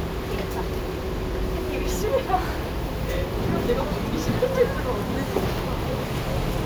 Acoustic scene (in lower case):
bus